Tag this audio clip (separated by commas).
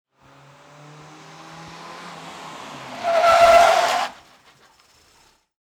Vehicle, Car, Motor vehicle (road)